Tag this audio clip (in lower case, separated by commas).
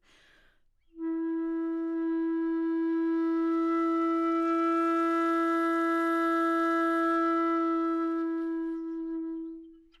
music, musical instrument, wind instrument